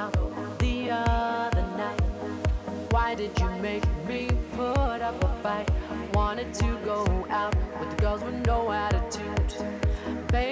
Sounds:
music

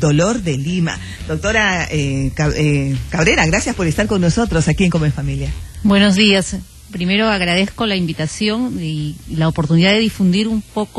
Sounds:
speech

